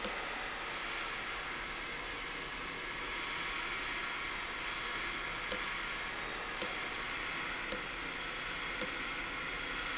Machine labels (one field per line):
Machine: valve